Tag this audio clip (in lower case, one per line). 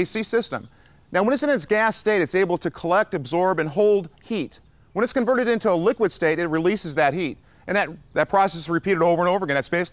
speech